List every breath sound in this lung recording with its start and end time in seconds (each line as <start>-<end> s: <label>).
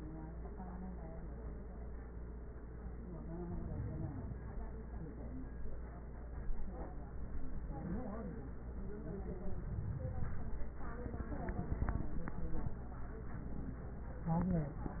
No breath sounds were labelled in this clip.